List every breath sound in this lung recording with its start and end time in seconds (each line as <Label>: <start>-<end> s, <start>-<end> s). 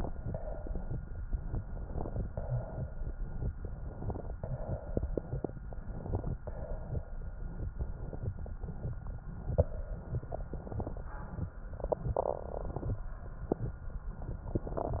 Inhalation: 1.45-2.20 s, 3.55-4.31 s, 5.66-6.33 s, 7.77-8.54 s, 10.49-11.10 s, 14.54-15.00 s
Exhalation: 0.20-0.95 s, 2.34-3.10 s, 4.41-5.50 s, 6.43-7.11 s, 9.41-10.45 s